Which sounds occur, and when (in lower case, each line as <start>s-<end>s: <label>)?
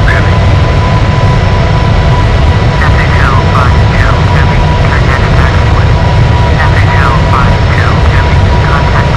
0.0s-0.2s: male speech
0.0s-9.1s: aircraft
2.6s-5.8s: male speech
6.5s-9.1s: male speech